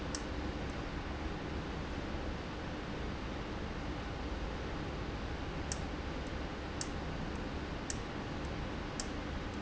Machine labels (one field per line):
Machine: valve